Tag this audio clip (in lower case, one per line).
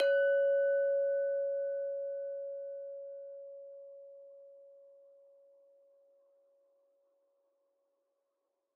glass
chink